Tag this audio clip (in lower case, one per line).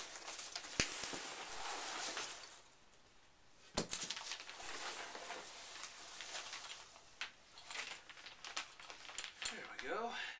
speech